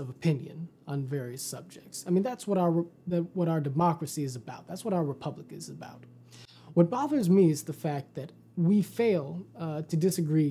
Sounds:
Speech

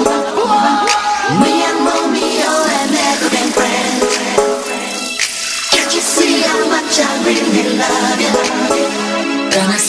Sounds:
Music

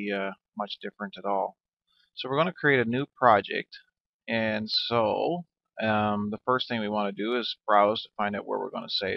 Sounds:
Speech

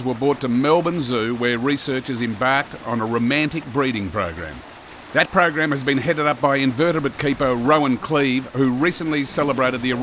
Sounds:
Speech

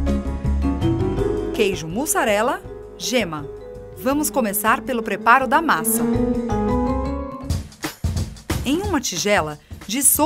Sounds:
Speech, Music

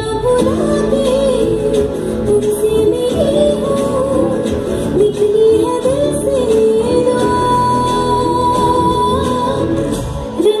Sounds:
Music

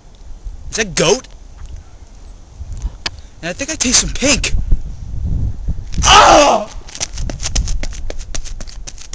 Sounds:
Speech, Male speech

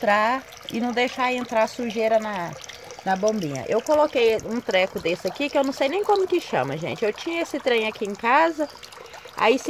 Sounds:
splashing water

